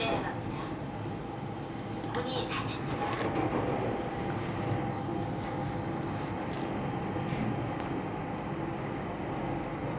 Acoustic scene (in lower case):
elevator